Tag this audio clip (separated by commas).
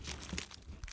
Crumpling